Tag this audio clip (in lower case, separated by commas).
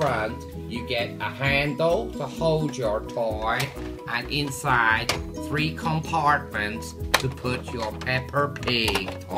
music, speech